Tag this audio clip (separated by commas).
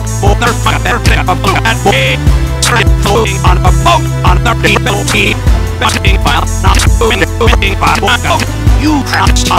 Music